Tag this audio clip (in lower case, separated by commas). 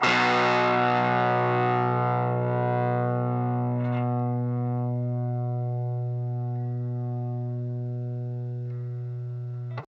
musical instrument, music, plucked string instrument, guitar